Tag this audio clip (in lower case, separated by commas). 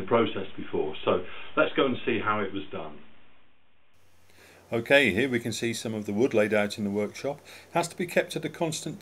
speech